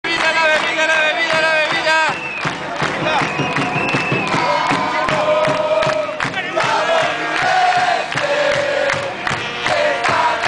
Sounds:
Cheering, Music

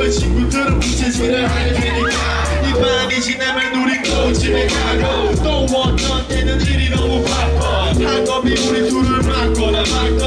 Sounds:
Music, Rhythm and blues

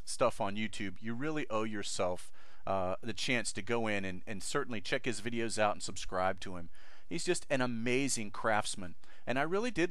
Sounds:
Speech

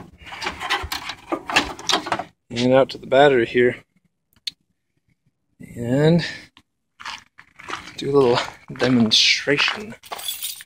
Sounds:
Speech

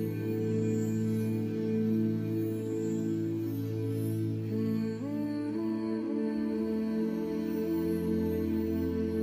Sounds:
Music

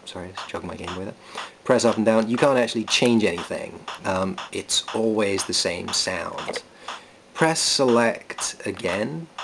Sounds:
Speech

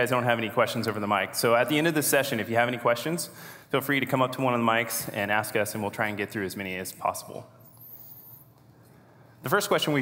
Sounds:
Speech

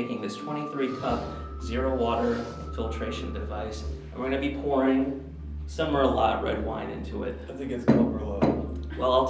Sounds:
Music, Speech

